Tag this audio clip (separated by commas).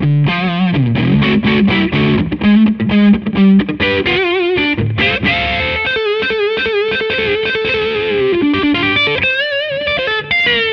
Music